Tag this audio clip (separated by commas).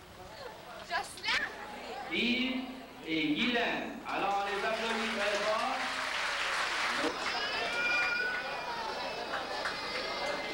Speech